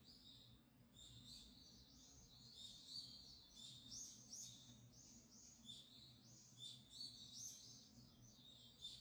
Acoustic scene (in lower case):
park